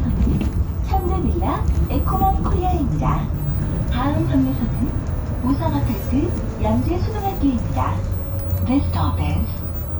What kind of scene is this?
bus